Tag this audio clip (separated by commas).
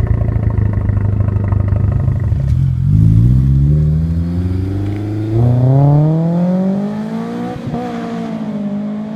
engine accelerating, Vehicle, Accelerating, Car, Clatter